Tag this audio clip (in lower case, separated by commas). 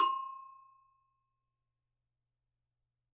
percussion, music, bell, musical instrument